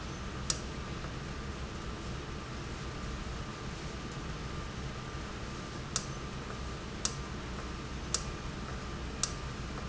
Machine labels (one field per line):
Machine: valve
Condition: normal